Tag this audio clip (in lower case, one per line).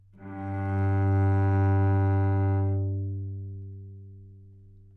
music
bowed string instrument
musical instrument